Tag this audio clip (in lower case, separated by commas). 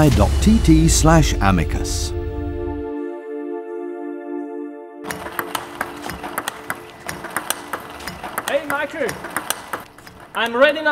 playing table tennis